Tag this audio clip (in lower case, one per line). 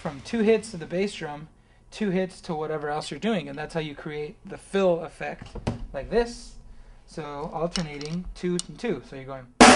music
bass drum
musical instrument
drum kit
drum
speech